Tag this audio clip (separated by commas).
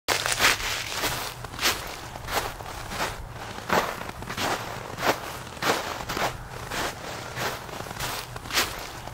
footsteps on snow